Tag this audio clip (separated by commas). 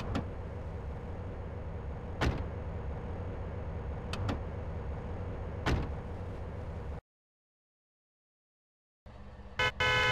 Sound effect